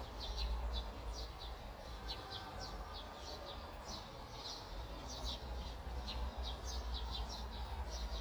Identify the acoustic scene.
park